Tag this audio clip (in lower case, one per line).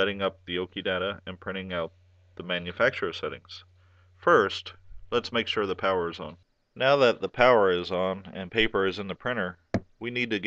speech